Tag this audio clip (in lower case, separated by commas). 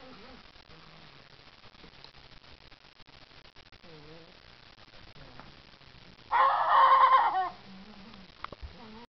cock-a-doodle-doo, rooster, fowl